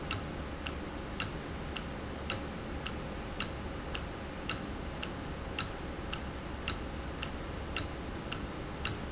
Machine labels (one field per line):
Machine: valve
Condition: normal